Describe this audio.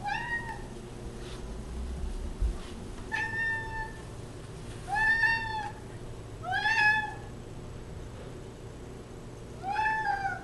A cat meows continuously